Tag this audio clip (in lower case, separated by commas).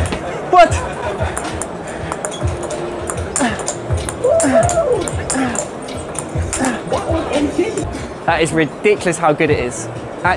playing table tennis